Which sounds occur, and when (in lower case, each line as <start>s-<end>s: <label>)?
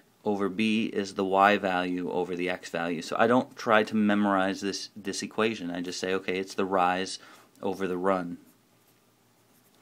0.0s-9.8s: mechanisms
0.2s-7.2s: male speech
7.1s-7.4s: breathing
7.5s-8.4s: male speech
7.7s-7.8s: writing
8.4s-8.5s: writing
8.8s-9.0s: writing
9.4s-9.8s: writing